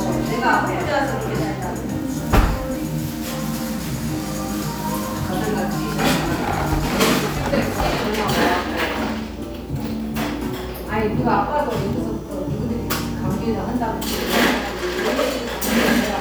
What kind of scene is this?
cafe